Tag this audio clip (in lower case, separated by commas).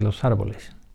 human voice